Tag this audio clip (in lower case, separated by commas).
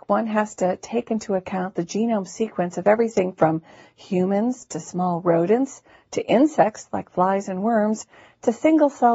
speech